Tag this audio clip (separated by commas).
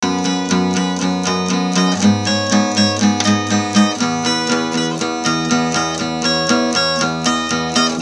Musical instrument, Acoustic guitar, Guitar, Plucked string instrument, Music